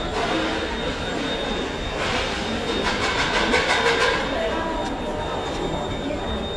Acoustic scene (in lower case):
crowded indoor space